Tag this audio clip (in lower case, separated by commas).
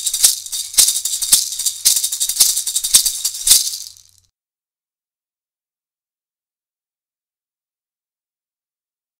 music, maraca